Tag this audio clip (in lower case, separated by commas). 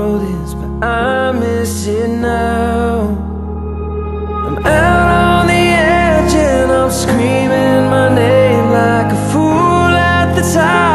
music